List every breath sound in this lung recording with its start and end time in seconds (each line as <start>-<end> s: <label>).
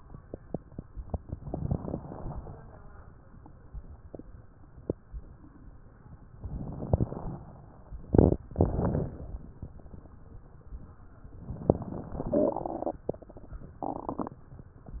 1.50-2.49 s: inhalation
1.50-2.49 s: crackles
6.45-7.44 s: inhalation
6.45-7.44 s: crackles
11.50-12.35 s: inhalation
11.50-12.35 s: crackles